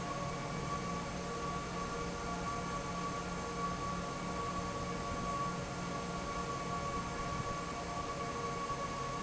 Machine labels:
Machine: fan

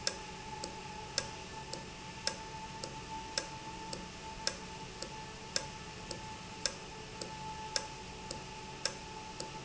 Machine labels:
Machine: valve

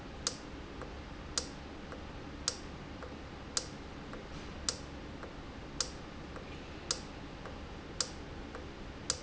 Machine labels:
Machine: valve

